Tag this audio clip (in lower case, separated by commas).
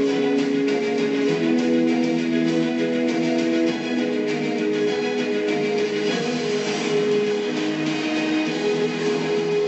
theme music, music